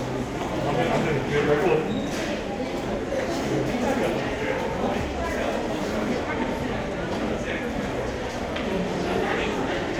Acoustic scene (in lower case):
crowded indoor space